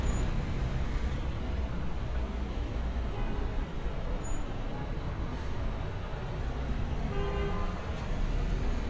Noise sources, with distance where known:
unidentified impact machinery; car horn, near

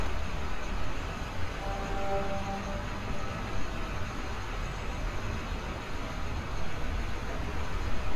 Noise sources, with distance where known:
engine of unclear size

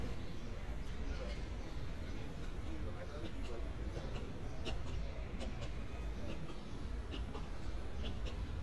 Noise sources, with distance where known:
person or small group talking, far

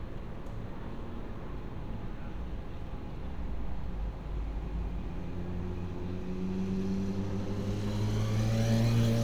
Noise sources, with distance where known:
small-sounding engine, near

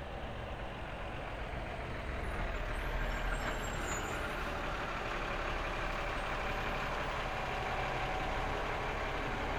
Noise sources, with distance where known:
large-sounding engine, near

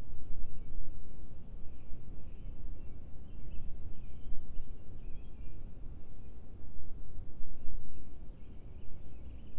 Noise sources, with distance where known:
background noise

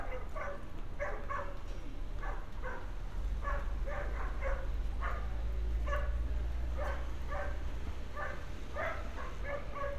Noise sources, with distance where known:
dog barking or whining, near

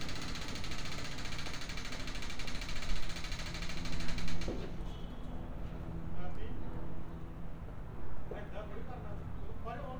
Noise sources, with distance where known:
unidentified impact machinery

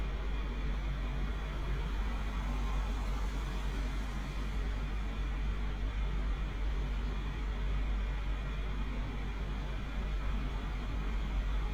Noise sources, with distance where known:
engine of unclear size, near

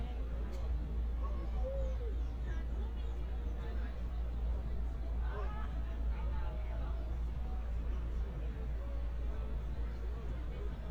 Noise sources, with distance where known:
person or small group talking

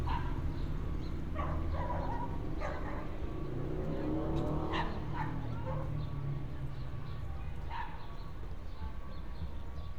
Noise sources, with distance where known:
engine of unclear size, far; dog barking or whining, far

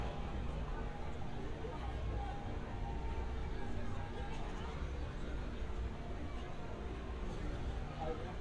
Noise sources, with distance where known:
person or small group talking

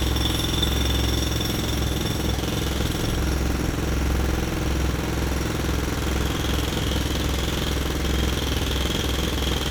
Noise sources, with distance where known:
rock drill, near

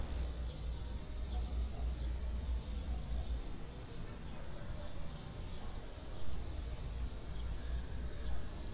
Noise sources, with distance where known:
engine of unclear size, near

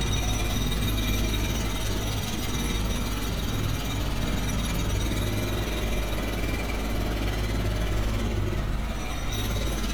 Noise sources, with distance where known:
jackhammer, near

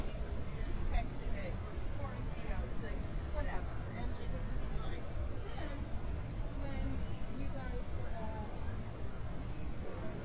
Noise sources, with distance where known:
person or small group talking, near

